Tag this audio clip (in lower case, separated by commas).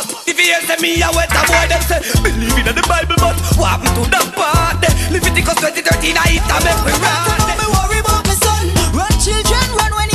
music, male singing